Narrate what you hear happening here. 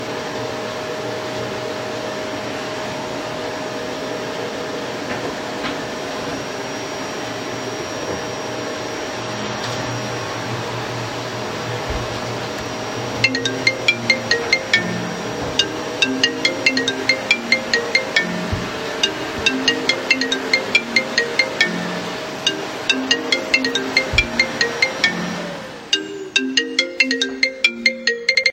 I was vacuuming the room, when someone called me on the phone